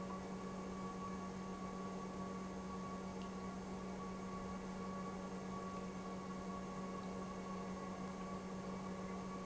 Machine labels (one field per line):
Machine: pump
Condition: normal